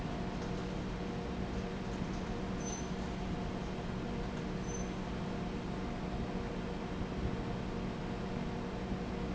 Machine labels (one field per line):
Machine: fan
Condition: abnormal